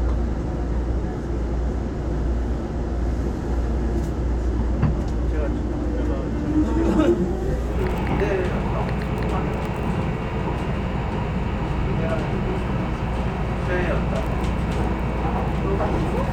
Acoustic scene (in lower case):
subway train